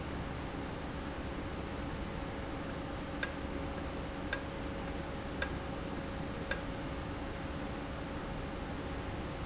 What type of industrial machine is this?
valve